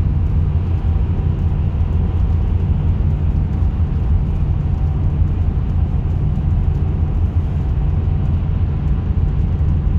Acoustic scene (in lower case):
car